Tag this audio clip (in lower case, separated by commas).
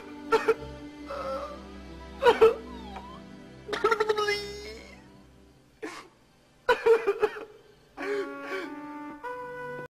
music